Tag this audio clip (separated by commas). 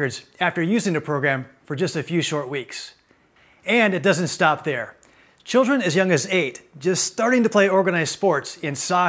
Speech